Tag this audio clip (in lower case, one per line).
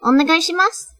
speech
human voice
female speech